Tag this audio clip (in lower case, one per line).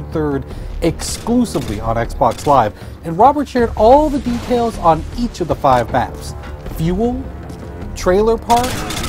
music
speech